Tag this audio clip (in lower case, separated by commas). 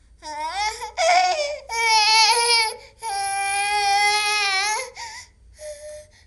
sobbing, human voice